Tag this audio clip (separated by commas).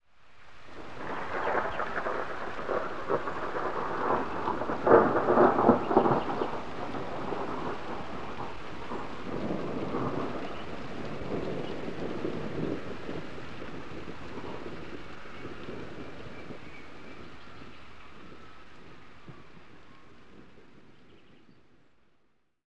Thunder, Thunderstorm